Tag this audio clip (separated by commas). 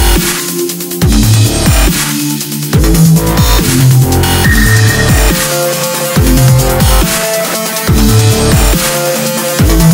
Electronic music, Music, Dubstep